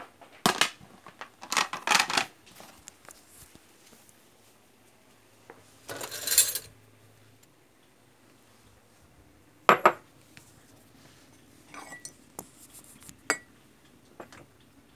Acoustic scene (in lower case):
kitchen